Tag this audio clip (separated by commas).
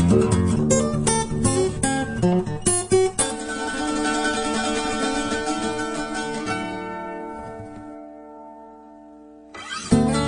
Pizzicato